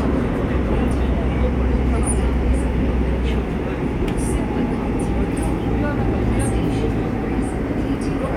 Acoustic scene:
subway train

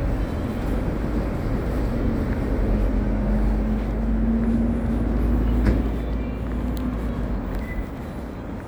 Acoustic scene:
residential area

